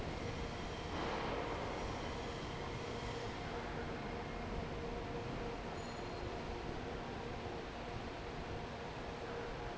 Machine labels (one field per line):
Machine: fan